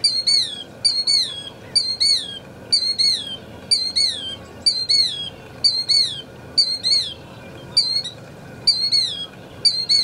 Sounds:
wood thrush calling

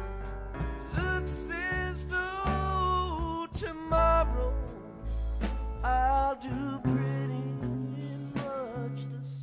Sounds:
Music

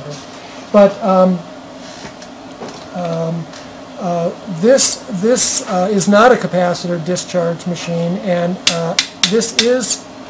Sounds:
inside a large room or hall, Speech

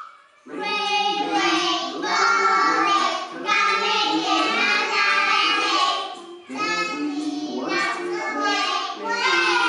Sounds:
Music, Speech

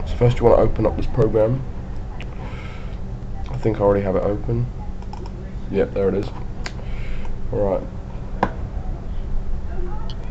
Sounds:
Speech

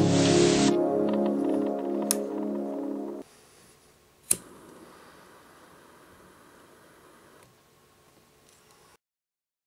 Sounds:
strike lighter

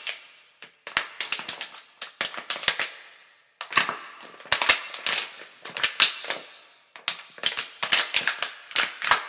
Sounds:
plastic bottle crushing

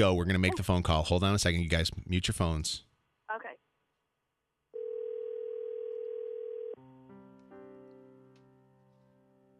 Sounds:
Dial tone, Speech

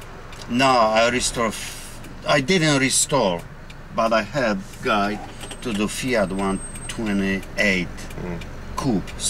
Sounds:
Speech

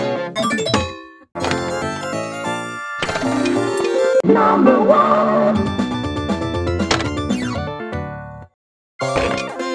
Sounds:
Cacophony

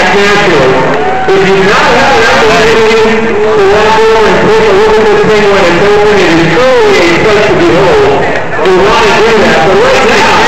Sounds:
Speech

